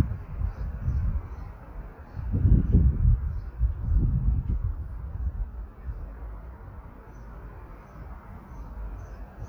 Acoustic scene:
park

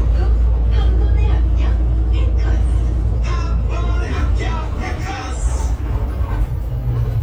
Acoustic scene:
bus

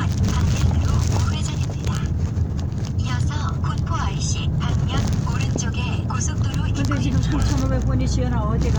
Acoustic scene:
car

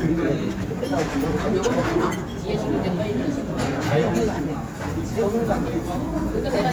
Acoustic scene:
restaurant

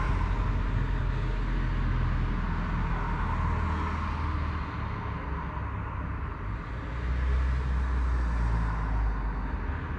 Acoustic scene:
street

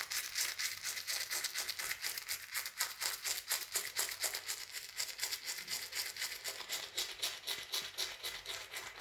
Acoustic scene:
restroom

